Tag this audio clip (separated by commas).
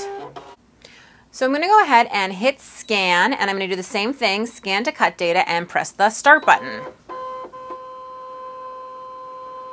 inside a small room, Speech